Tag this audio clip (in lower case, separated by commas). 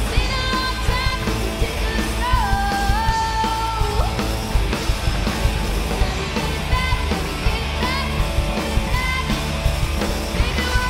rock and roll, music